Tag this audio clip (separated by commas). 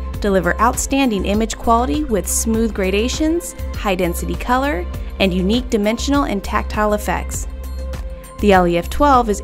Speech, Music